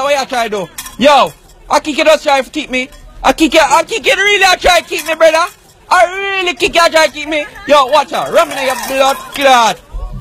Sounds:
Speech

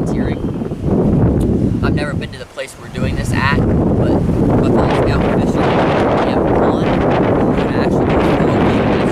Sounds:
Speech

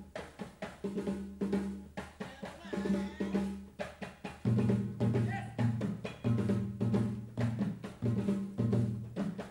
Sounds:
Percussion

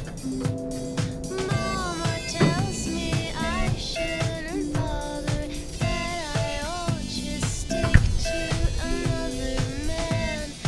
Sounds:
Music

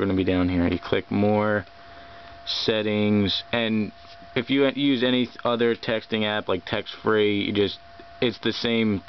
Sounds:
Speech

